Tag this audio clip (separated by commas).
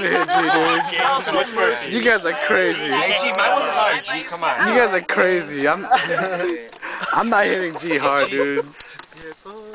Speech, Male speech